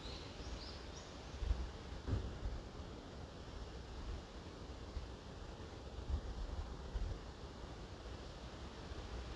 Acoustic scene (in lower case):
park